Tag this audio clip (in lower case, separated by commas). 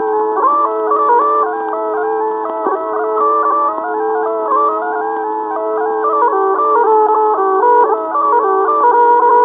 bagpipes, music